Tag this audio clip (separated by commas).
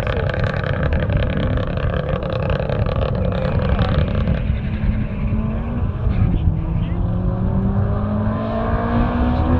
outside, rural or natural, Vehicle